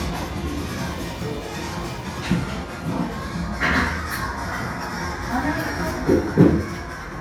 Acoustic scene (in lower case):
cafe